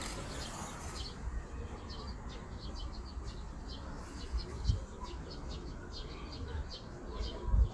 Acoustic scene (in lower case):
park